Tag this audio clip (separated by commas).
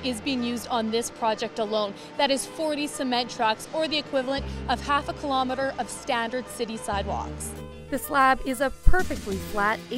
Music, Speech